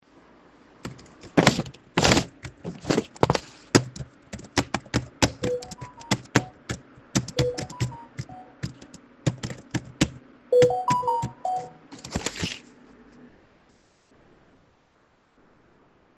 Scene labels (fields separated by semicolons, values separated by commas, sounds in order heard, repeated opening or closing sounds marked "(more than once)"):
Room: living room; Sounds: keyboard typing, phone ringing